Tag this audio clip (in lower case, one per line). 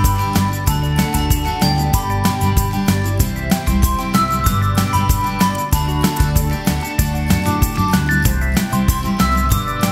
music